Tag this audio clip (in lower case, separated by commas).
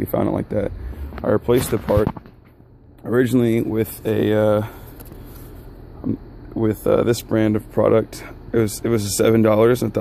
speech